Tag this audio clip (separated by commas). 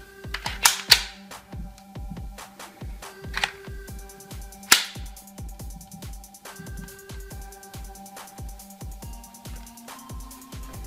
cap gun shooting